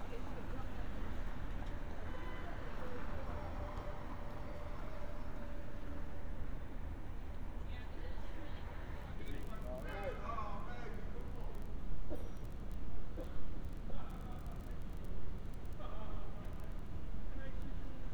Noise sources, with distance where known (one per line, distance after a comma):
car horn, far
person or small group talking